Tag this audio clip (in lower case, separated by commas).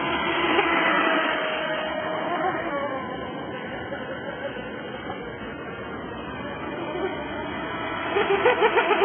motorboat